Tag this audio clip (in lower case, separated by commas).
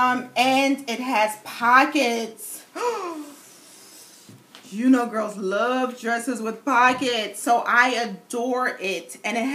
speech